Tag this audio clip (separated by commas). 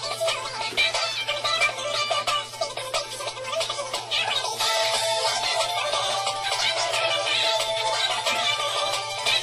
Music